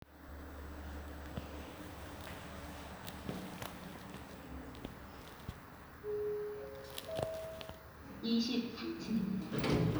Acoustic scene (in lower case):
elevator